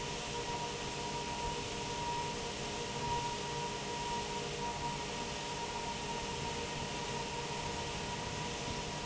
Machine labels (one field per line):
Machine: fan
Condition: normal